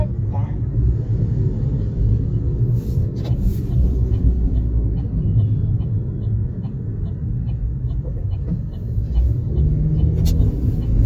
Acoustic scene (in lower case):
car